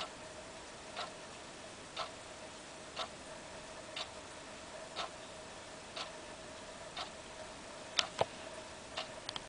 A clock softly tick locking